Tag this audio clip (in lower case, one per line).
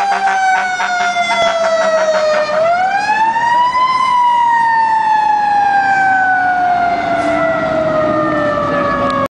accelerating
vehicle